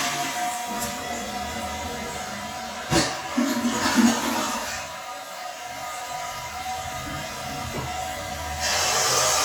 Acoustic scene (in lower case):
restroom